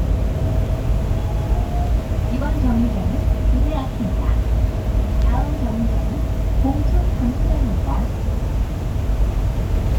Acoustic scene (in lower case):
bus